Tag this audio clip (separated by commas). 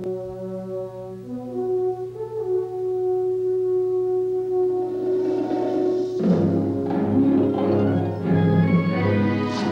Music